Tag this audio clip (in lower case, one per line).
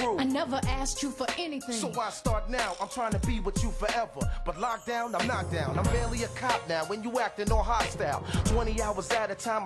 rapping
music